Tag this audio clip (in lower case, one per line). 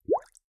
gurgling
water